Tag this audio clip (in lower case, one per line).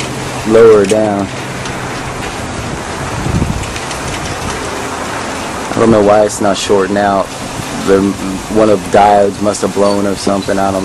wind
speech